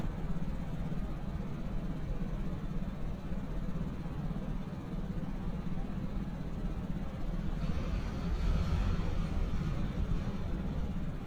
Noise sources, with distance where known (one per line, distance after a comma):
large-sounding engine, far